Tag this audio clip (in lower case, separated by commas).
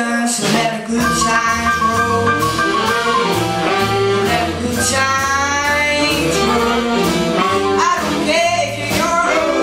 jazz, music